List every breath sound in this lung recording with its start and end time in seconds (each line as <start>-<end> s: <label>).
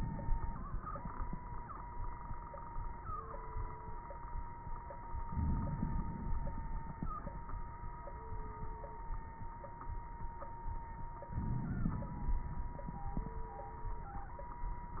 5.28-6.41 s: inhalation
5.28-6.41 s: crackles
11.32-12.46 s: inhalation
11.32-12.46 s: crackles